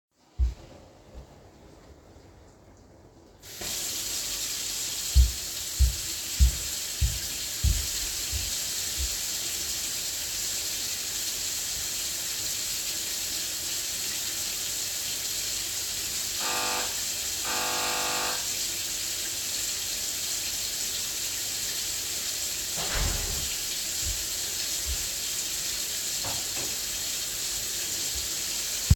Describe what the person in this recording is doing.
I took a step to my sink then turned it on. I then walked to my doorbell, rang it twice, and closed my outer door. I then walked inside, and closed my inner door.